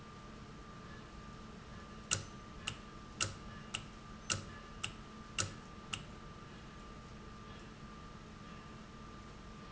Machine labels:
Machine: valve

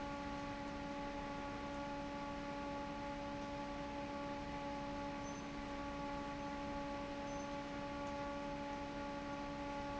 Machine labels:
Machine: fan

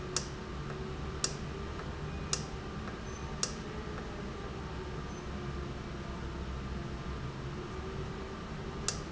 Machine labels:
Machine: valve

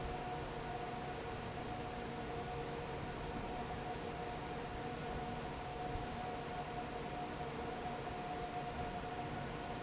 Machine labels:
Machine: fan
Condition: normal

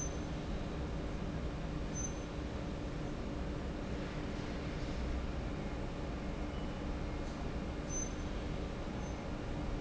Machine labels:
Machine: fan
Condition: normal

